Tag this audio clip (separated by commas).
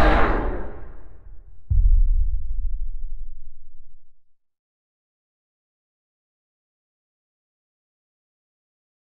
Silence